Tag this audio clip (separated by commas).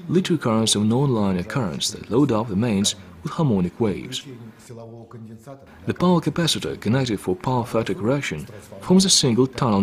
Speech